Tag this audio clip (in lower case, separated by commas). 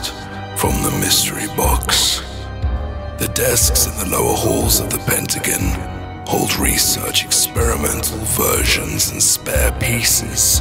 music, speech